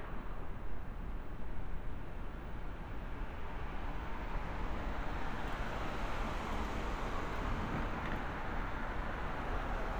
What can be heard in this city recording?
medium-sounding engine, engine of unclear size